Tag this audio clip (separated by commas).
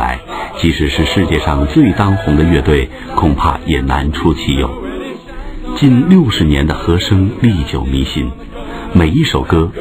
Speech